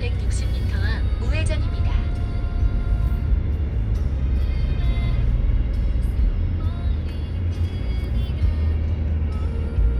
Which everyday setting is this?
car